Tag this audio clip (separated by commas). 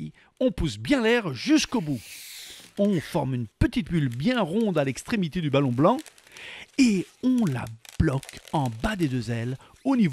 penguins braying